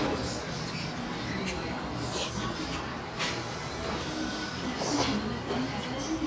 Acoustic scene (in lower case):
restaurant